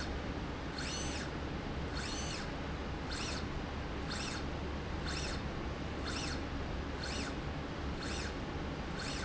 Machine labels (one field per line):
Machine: slide rail